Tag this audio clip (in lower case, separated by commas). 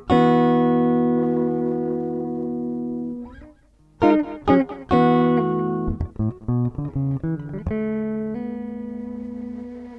guitar, music, tapping (guitar technique)